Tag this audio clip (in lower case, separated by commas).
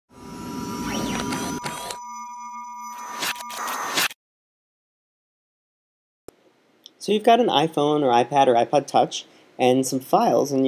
music, speech